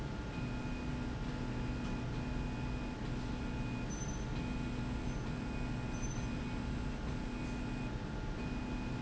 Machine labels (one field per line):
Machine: slide rail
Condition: normal